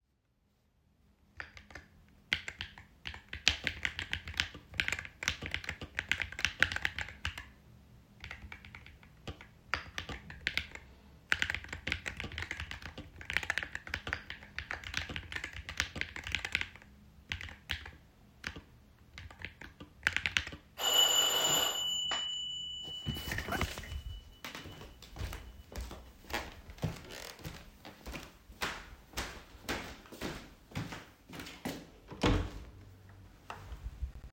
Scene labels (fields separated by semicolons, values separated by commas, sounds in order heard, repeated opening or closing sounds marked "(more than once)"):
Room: office, hallway; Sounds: keyboard typing, bell ringing, footsteps, door